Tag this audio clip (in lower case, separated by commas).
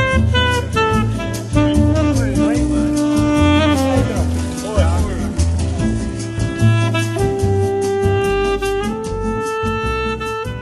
speech, music